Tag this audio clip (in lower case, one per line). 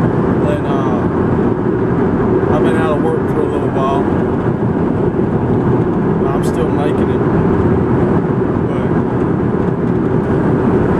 speech